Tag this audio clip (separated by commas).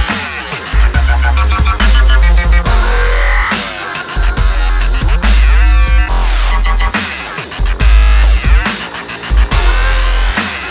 Dubstep, Music